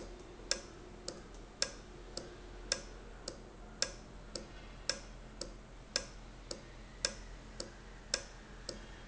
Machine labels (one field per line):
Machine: valve